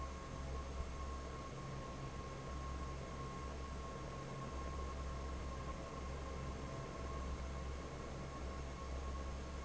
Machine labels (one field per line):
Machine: fan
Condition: normal